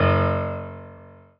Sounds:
musical instrument, keyboard (musical), music, piano

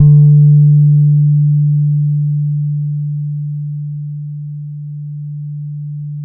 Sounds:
guitar, plucked string instrument, bass guitar, music, musical instrument

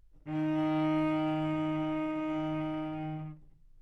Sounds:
musical instrument, music, bowed string instrument

